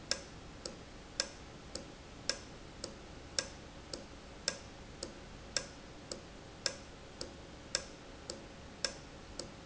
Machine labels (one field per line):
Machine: valve